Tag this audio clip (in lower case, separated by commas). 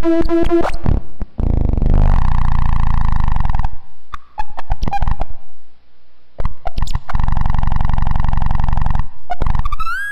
effects unit, distortion